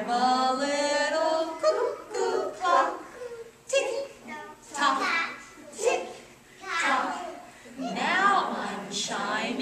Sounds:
A capella

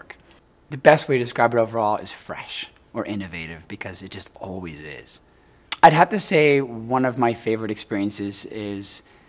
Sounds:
Speech

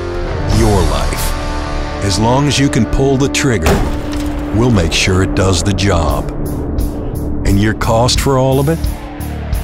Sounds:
Tools, Music, Speech

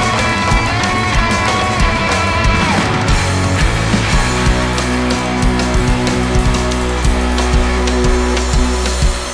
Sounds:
Musical instrument, Drum kit, Percussion, Drum, Plucked string instrument, Guitar, Progressive rock, Cymbal, Music

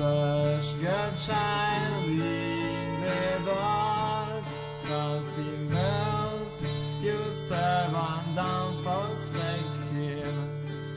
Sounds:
Guitar, Plucked string instrument, Music, fiddle, Musical instrument

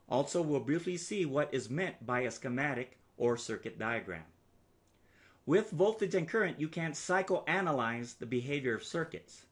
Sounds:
Speech

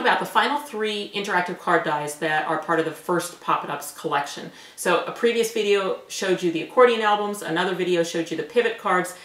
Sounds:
Speech

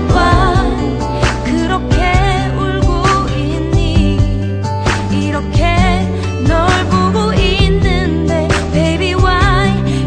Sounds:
Soundtrack music, Pop music, Music

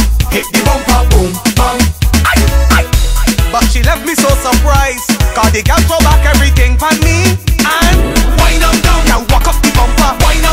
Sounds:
Music, Afrobeat

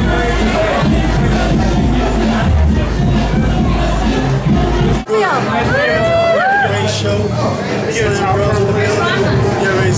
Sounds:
Speech, Music

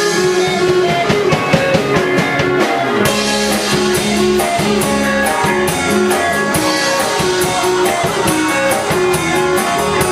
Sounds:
Music

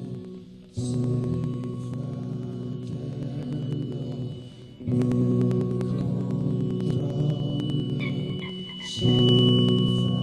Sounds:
Rock and roll, Music

